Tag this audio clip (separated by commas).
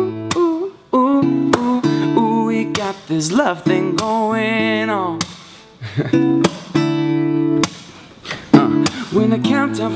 Music